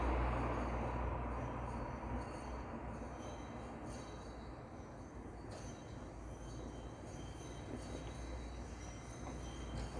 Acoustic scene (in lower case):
street